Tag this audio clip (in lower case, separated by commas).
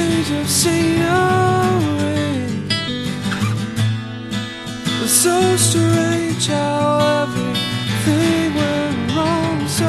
music